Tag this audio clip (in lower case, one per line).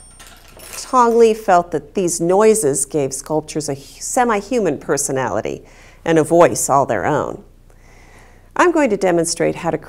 speech